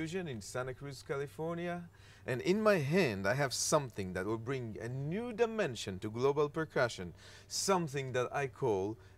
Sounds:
Speech

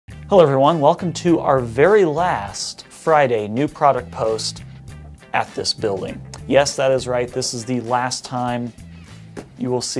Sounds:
Speech

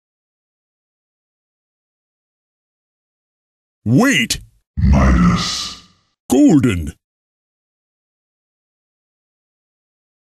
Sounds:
Speech

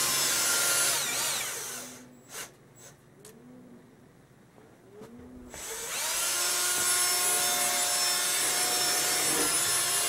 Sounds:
Drill

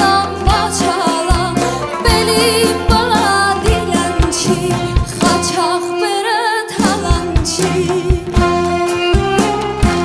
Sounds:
Singing, Folk music, Music

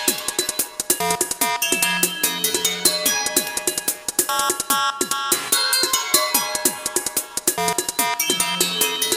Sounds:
Music

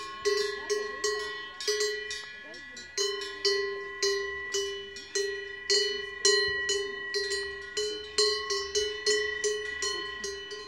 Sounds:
bovinae cowbell

